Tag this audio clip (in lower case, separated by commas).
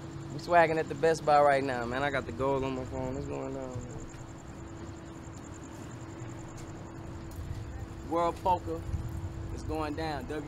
speech, outside, urban or man-made